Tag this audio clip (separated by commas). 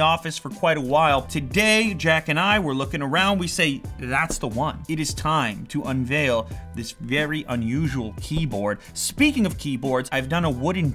typing on typewriter